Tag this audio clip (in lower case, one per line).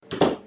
wood
slam
home sounds
door